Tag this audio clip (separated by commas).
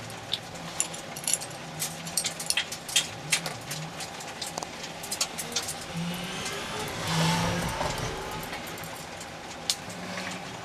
inside a small room